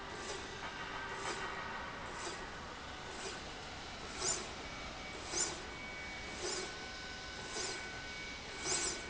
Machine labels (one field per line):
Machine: slide rail